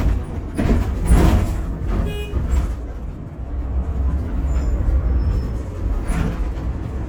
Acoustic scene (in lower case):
bus